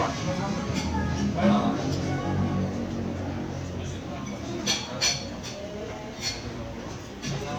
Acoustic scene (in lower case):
crowded indoor space